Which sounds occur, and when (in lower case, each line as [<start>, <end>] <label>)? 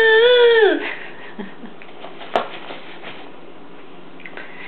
[0.01, 0.87] child speech
[0.01, 4.65] background noise
[0.81, 1.76] laughter